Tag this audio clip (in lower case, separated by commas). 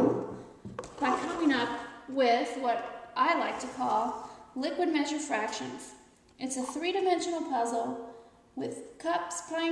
speech